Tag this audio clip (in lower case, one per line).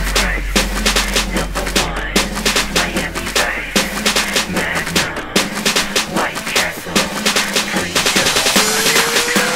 music